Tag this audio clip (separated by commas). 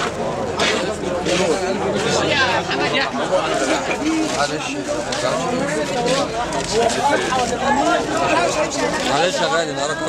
Speech